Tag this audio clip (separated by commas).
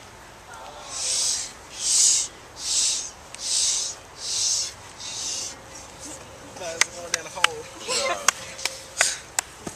Speech